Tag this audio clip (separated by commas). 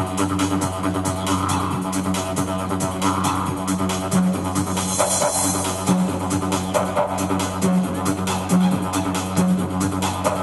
playing didgeridoo